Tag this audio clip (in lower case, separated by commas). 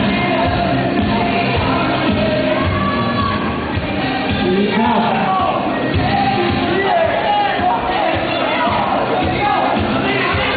music, speech